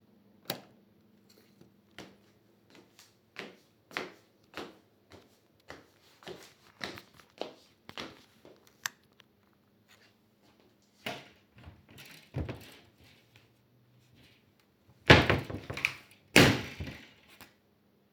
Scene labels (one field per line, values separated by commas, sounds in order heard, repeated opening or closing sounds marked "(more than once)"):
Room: bedroom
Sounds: light switch, footsteps, wardrobe or drawer (more than once)